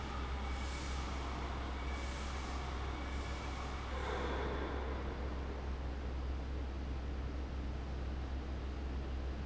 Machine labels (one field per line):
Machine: fan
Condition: abnormal